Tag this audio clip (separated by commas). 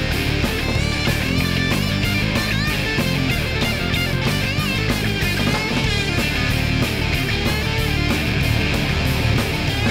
Music